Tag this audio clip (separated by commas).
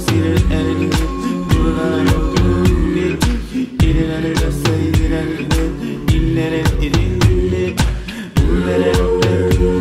Reggae, Music